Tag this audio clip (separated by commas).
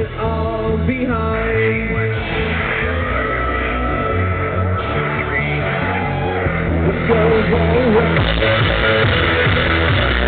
Music